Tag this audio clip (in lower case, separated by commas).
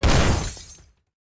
glass